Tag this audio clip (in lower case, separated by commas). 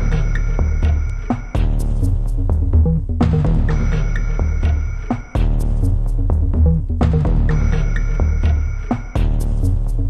music